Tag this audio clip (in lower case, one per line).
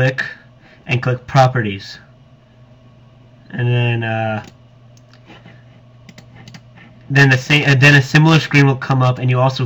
speech